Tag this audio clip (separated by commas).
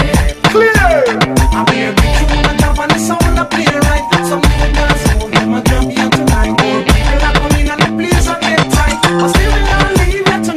Music, Afrobeat